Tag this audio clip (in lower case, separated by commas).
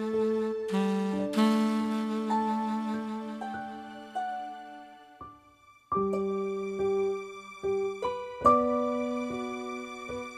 lullaby, music